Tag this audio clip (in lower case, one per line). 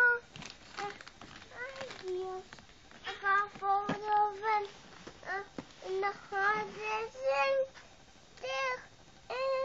speech